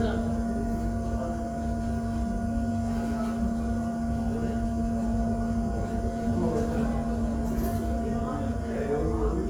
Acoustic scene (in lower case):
subway station